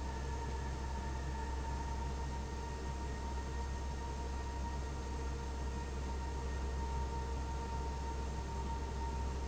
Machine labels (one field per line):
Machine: fan